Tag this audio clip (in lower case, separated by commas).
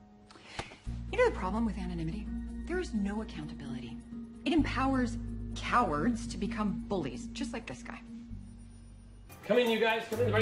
music, speech